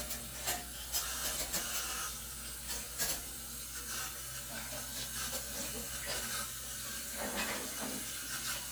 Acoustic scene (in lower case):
kitchen